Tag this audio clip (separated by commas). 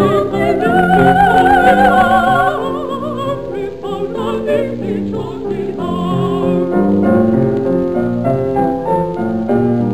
Music, Opera